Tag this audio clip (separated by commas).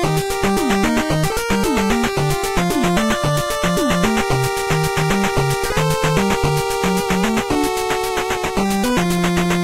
Soundtrack music